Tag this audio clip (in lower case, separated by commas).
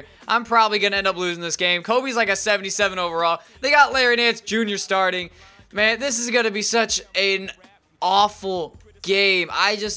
speech